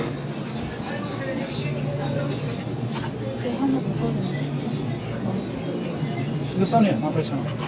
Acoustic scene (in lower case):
crowded indoor space